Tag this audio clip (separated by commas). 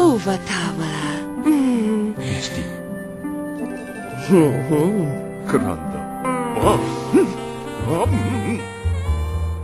Music, Speech